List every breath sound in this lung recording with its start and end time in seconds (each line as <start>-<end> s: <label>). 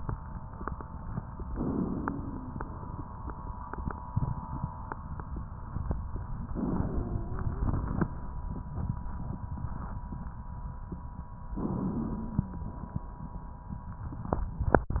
1.50-2.56 s: inhalation
1.50-2.56 s: wheeze
6.55-8.05 s: inhalation
6.55-8.05 s: wheeze
11.59-13.07 s: inhalation
11.59-13.07 s: wheeze